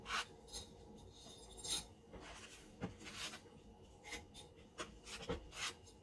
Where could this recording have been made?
in a kitchen